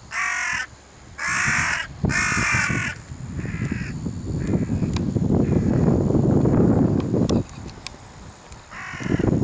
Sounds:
crow cawing

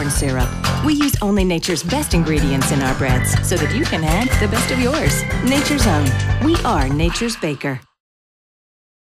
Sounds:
Music, Speech

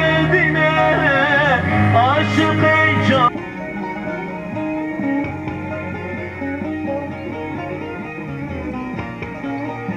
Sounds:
Music

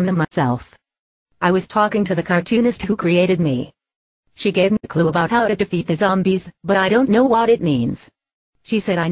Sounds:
Speech

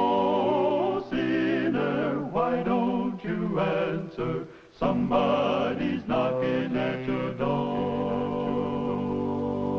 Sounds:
Music

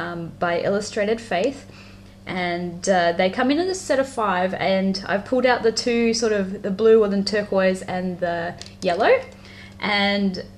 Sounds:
Speech

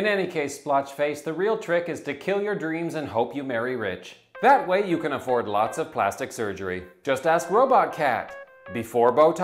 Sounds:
Speech, Music

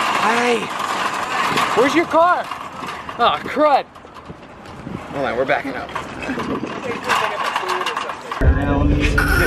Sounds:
Speech, outside, urban or man-made

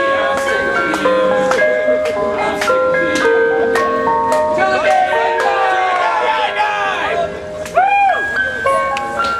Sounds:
Music, Speech

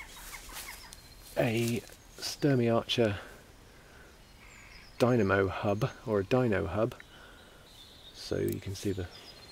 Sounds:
Speech

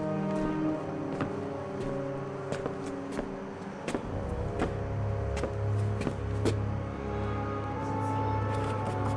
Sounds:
Music

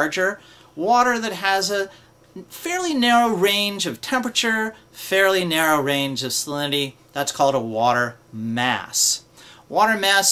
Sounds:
Speech

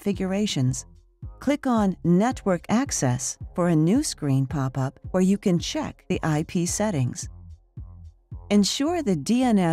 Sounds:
Speech

